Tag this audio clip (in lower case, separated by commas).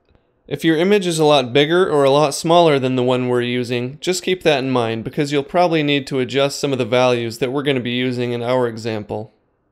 speech